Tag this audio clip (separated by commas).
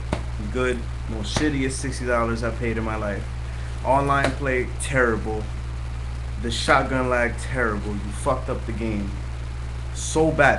Speech